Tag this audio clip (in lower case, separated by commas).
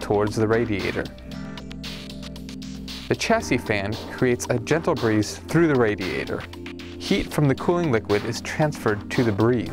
music, speech